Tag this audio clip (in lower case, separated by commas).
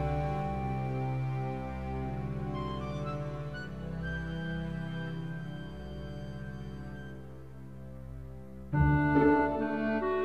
theme music, tender music, music